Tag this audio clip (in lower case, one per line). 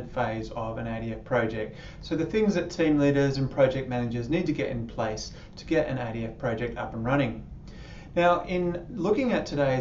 speech